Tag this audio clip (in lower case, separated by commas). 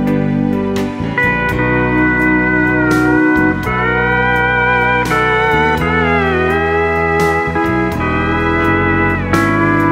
music, slide guitar